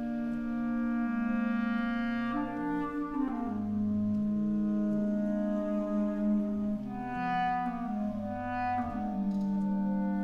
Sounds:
playing clarinet

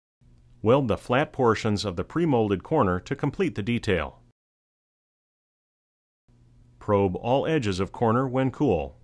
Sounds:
Speech

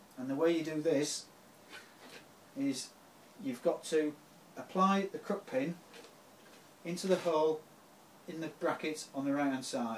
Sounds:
Speech

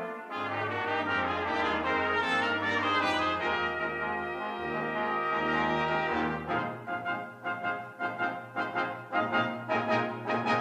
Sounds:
Brass instrument, Orchestra, Classical music, Music

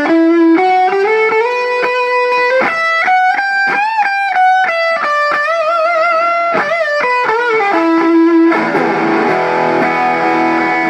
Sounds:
Musical instrument, Music, Electric guitar, Plucked string instrument, Guitar

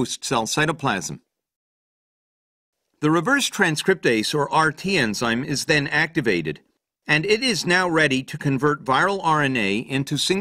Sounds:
Speech

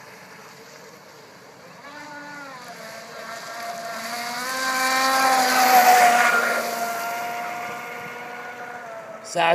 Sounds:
Motorboat, Speech, Vehicle

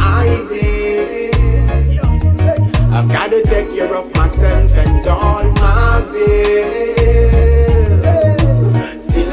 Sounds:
Music

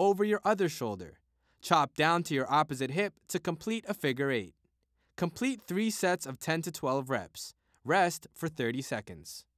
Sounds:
Speech

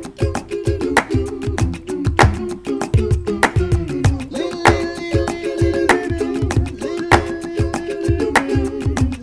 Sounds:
Music

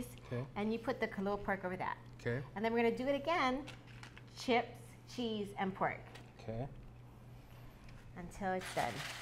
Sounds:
Speech

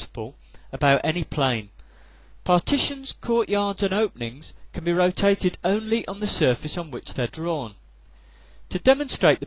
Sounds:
Speech

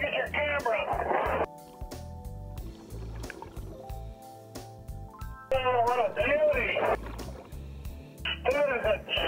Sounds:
Water, Speech, Music

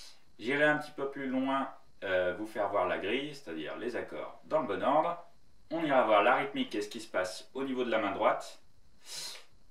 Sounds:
Speech

